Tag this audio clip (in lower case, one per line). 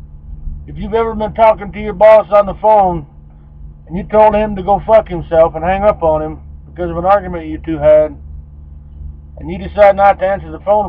speech